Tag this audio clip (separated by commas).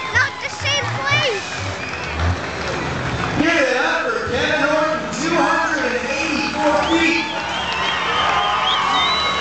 Speech